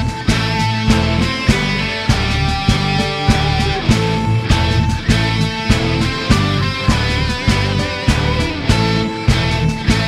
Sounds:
Sound effect, Music

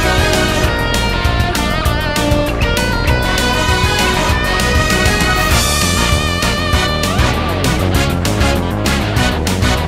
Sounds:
Music, Video game music, Background music

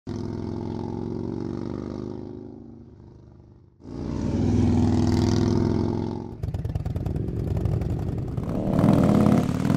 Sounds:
outside, rural or natural

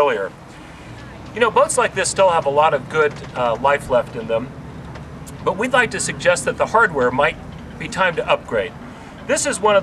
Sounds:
Speech

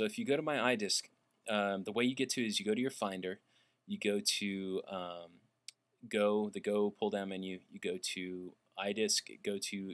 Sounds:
Speech

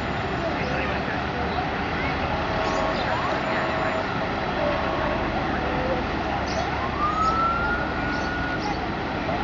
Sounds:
fire truck (siren), Emergency vehicle, Traffic noise, Motor vehicle (road), Vehicle

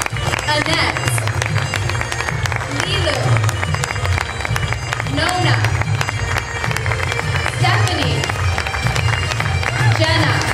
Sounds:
Speech, Bagpipes, Music

